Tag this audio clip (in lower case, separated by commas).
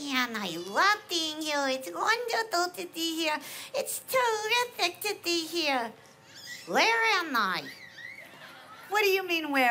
speech